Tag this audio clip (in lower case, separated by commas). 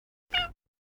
cat, animal, domestic animals, meow